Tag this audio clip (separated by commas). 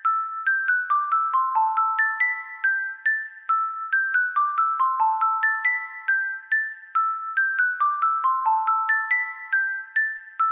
Music